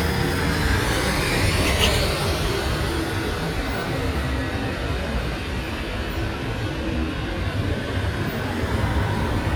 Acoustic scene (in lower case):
street